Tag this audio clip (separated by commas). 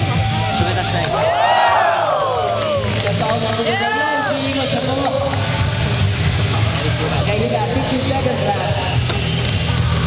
Speech, Music